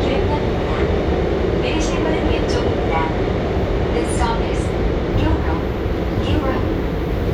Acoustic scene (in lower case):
subway train